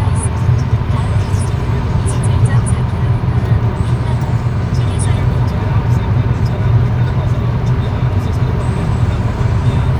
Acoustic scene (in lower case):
car